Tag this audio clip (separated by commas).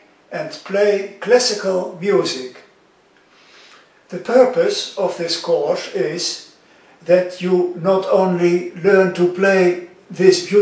Speech